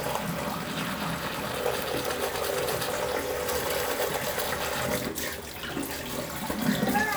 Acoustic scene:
restroom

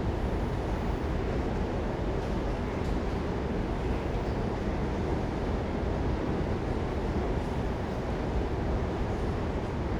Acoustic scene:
subway station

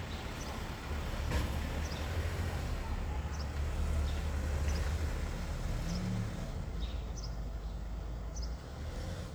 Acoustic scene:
residential area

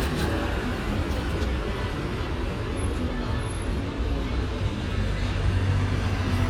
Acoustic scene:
street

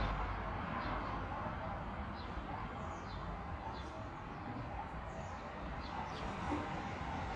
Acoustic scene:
park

